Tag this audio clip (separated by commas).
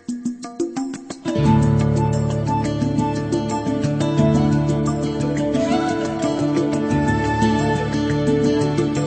Music